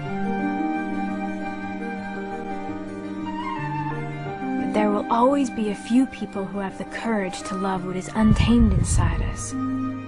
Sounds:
Speech, Music

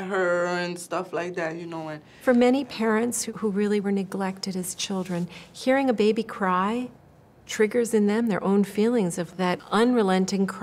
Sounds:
Speech

